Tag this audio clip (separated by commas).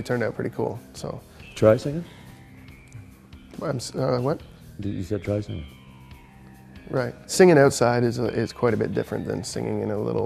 Music, Speech